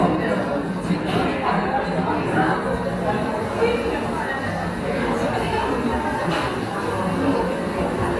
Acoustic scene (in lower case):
cafe